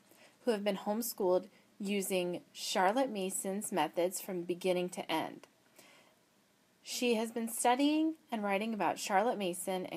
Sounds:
speech

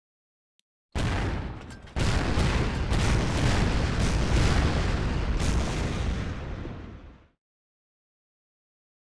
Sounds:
gunfire, artillery fire

